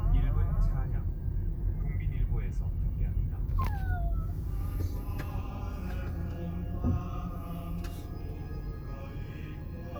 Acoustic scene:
car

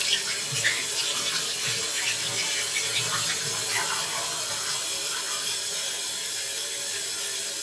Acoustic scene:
restroom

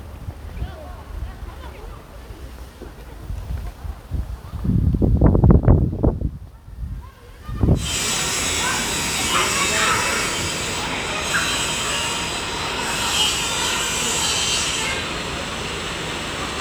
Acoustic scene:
residential area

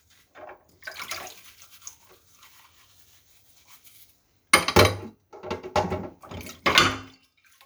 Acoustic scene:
kitchen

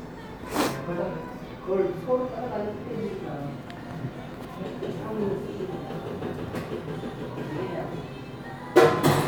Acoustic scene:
cafe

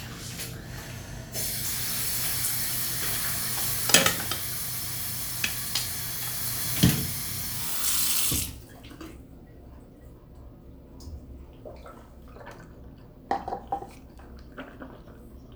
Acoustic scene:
restroom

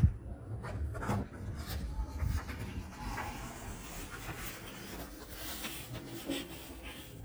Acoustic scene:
elevator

